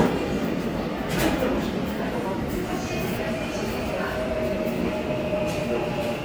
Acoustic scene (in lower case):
subway station